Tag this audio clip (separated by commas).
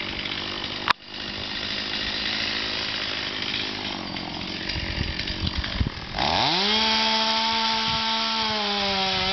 Chainsaw, chainsawing trees